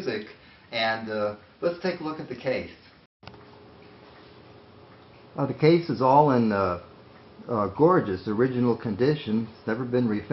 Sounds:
Speech

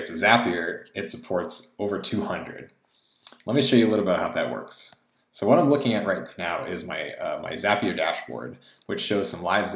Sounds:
Speech

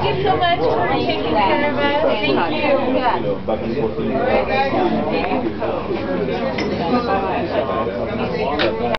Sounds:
Speech

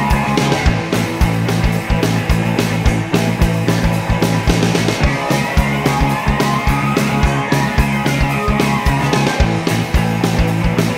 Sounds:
Music

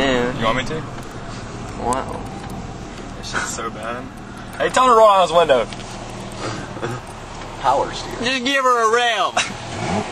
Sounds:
Speech

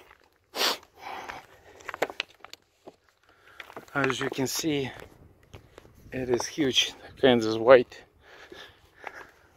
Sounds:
writing on blackboard with chalk

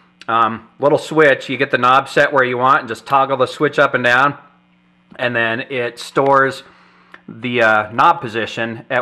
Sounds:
Speech

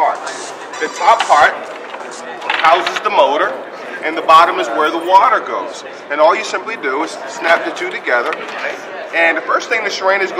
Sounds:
Speech

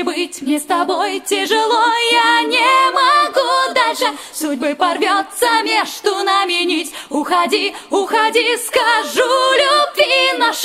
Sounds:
Music, A capella

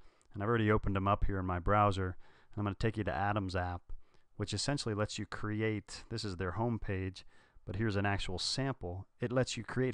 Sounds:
Speech

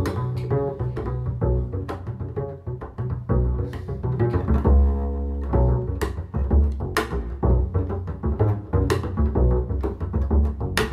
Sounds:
playing double bass

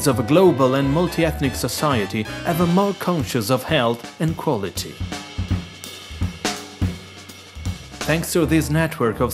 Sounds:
Cymbal, Snare drum, Rimshot, Speech, Hi-hat, Music

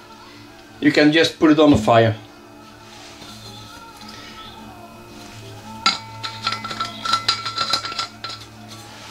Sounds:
Speech, Music

